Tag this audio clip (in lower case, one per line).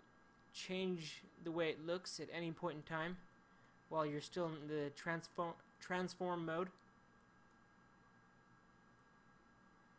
speech